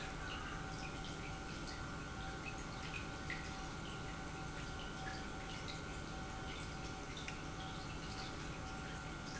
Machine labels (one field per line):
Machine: pump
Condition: normal